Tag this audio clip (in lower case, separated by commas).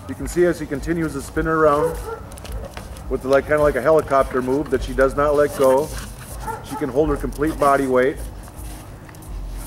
animal, pets, whimper (dog), dog, bow-wow, speech